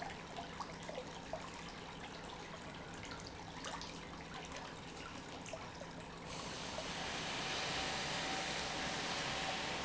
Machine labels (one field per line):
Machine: pump